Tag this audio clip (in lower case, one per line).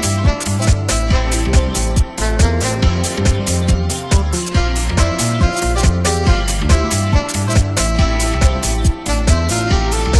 music